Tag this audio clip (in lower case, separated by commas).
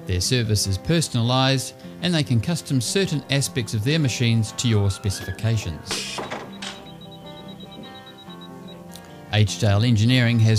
speech, music